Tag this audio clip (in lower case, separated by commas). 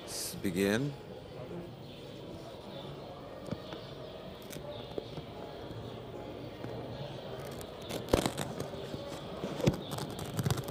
speech